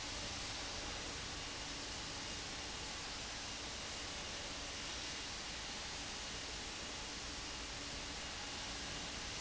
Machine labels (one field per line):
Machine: fan